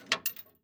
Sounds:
rattle

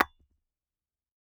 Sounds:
tap
glass

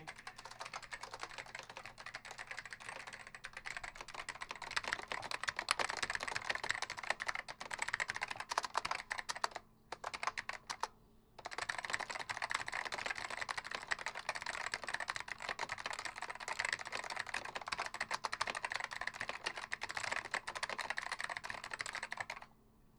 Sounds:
typing
domestic sounds

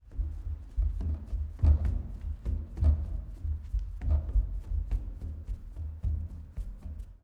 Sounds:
run

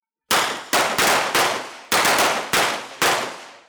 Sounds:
explosion
gunshot

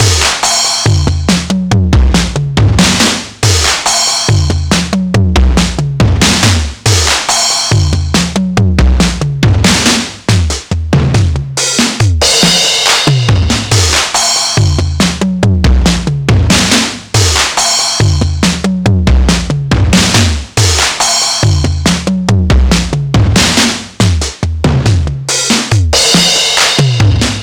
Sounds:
musical instrument
percussion
music
drum kit

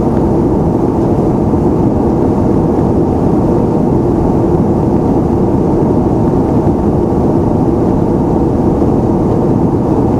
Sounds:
aircraft
vehicle
fixed-wing aircraft

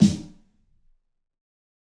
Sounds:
drum
music
musical instrument
snare drum
percussion

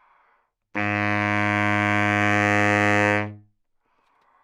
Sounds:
music
wind instrument
musical instrument

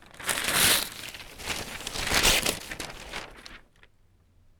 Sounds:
tearing

